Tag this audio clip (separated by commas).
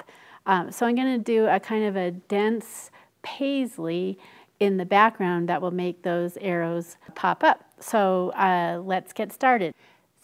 Speech